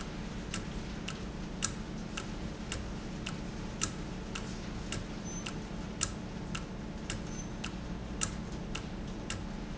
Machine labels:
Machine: valve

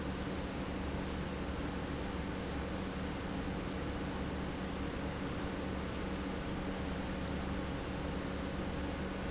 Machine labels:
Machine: pump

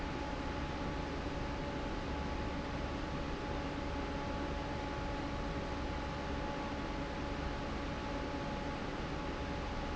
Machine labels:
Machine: fan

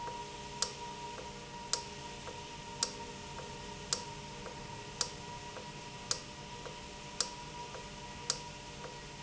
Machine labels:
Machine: valve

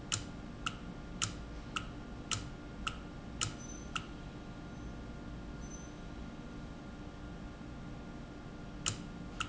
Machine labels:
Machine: valve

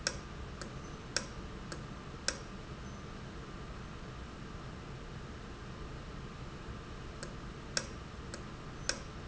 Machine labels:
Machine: valve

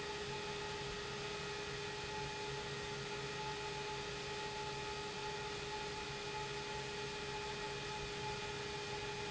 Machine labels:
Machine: pump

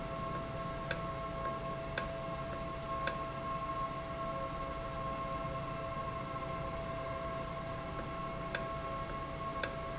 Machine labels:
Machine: valve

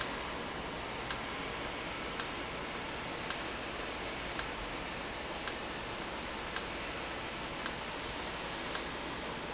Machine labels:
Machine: valve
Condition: normal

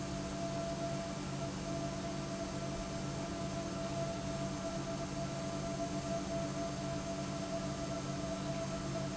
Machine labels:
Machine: pump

